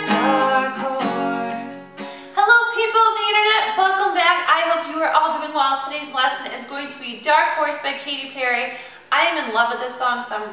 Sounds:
Musical instrument, Plucked string instrument, Singing, Speech, Music, Strum, Guitar

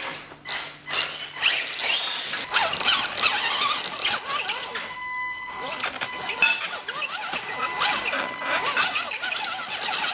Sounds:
inside a small room

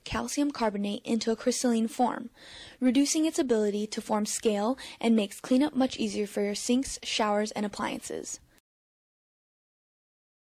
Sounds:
Speech

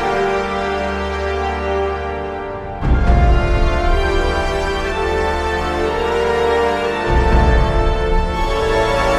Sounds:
Theme music, Music

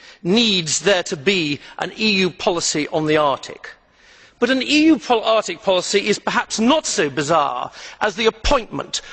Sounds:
monologue, Speech, Male speech

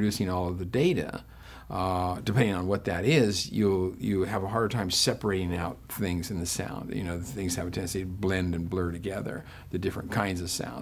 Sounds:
Speech

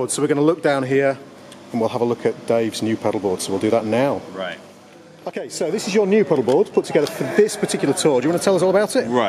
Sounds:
Speech

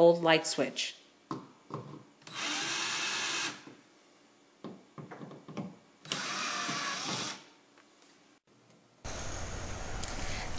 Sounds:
Tools, Power tool

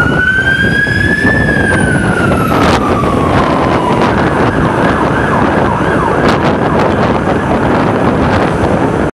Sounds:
Emergency vehicle, Truck, fire truck (siren)

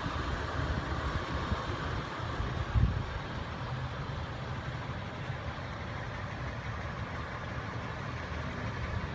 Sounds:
Vehicle, Motor vehicle (road), Car

